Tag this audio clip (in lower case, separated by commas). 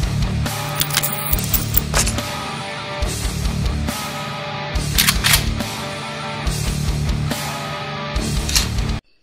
outside, rural or natural, music